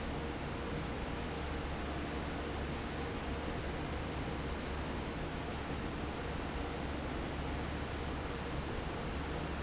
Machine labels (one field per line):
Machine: fan